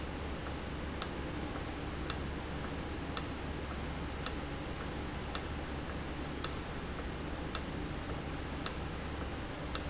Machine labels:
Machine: valve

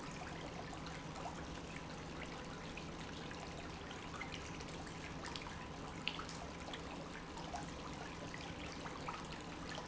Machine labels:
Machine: pump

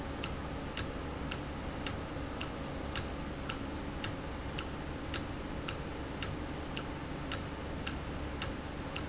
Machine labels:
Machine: valve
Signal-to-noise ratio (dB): -6 dB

